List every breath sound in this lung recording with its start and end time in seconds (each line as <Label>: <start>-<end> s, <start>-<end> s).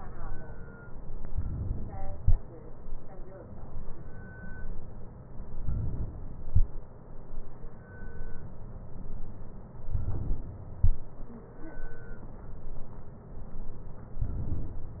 Inhalation: 1.34-2.14 s, 5.62-6.48 s, 9.96-10.82 s